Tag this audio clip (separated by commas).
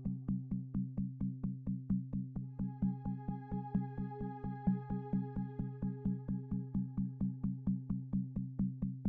Music